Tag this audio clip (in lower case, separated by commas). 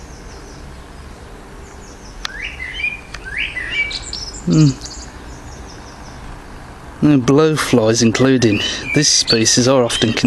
animal, speech, chirp